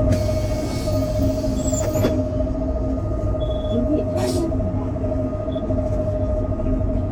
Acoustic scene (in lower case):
bus